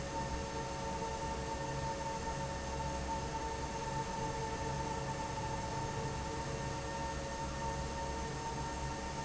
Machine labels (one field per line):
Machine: fan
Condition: normal